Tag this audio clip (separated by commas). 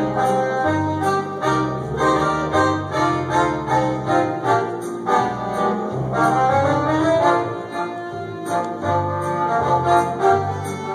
Accordion, Musical instrument, inside a large room or hall, Music